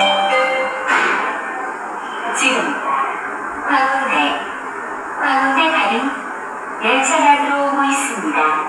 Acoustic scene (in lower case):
subway station